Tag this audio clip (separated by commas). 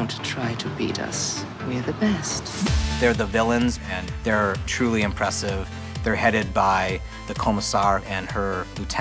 Speech, Music